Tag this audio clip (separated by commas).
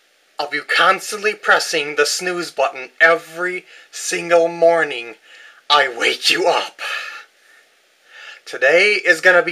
Speech